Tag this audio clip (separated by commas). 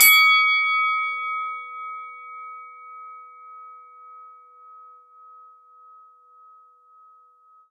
Bell